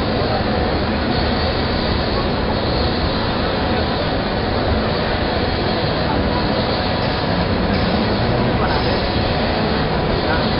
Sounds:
Speech, inside a public space

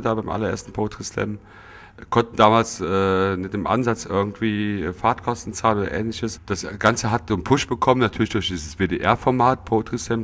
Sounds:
Speech

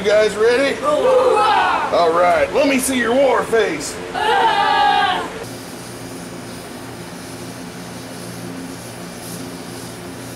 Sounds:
lighting firecrackers

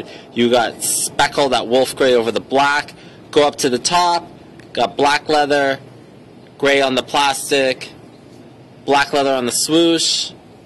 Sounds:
Speech

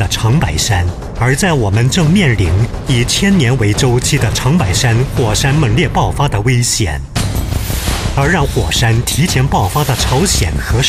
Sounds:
Music, Speech

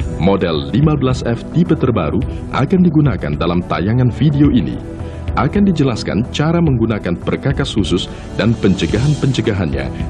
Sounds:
Music, Speech

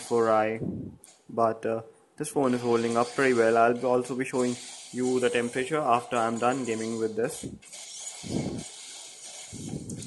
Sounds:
Speech

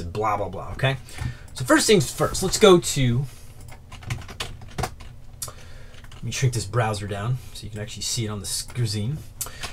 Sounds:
Computer keyboard, Speech

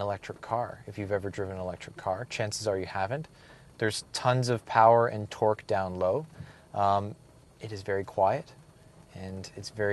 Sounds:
Speech

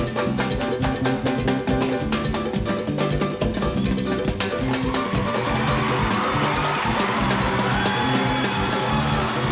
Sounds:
playing timbales

